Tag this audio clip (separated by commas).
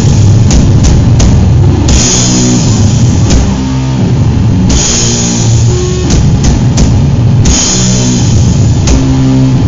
playing drum kit, Music, Percussion, Musical instrument, Drum kit, Heavy metal, Drum, Rock music